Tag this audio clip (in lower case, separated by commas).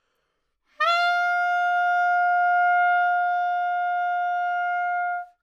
musical instrument, music, woodwind instrument